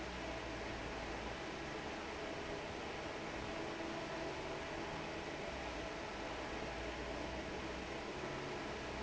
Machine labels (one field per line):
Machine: fan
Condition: normal